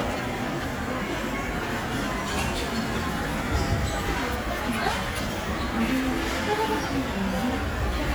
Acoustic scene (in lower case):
crowded indoor space